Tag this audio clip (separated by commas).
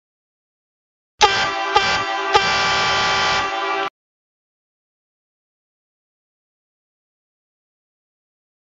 truck horn, Trumpet